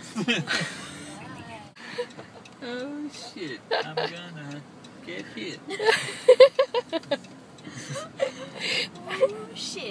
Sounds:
speech

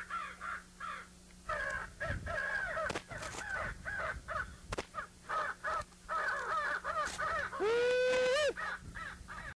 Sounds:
caw
animal
crow

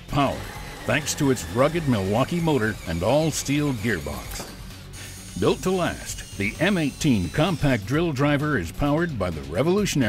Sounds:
tools
speech

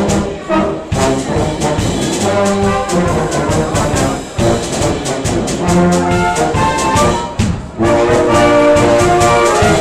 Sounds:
music
brass instrument
orchestra
classical music
musical instrument

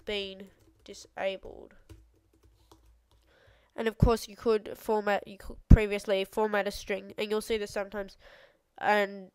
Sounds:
speech

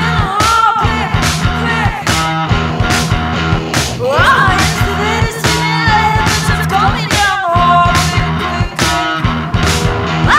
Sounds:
music

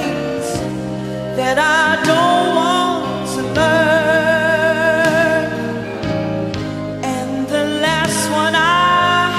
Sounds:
singing
inside a large room or hall
music

